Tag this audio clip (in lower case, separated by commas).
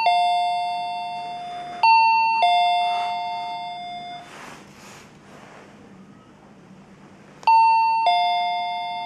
doorbell